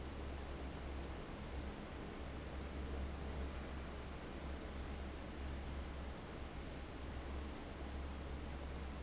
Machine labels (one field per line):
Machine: fan